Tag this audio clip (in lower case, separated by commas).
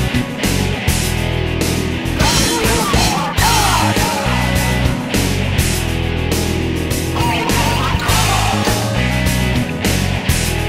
jazz, music